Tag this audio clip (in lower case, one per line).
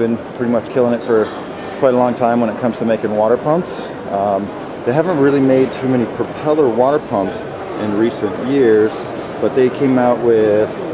speech